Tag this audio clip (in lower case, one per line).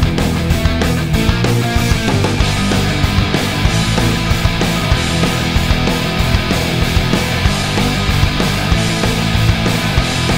music